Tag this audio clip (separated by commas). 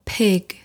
Speech, Human voice, woman speaking